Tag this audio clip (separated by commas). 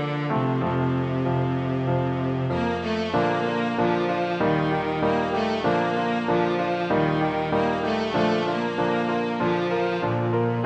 playing cello